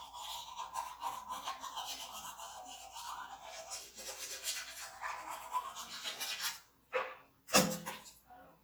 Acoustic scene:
restroom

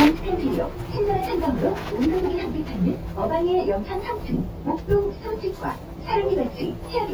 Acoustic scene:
bus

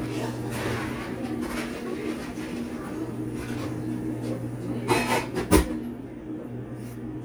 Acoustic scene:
cafe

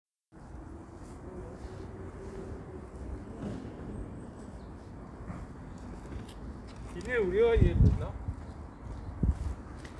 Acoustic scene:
residential area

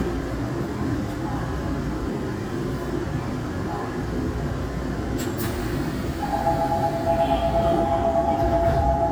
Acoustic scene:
subway train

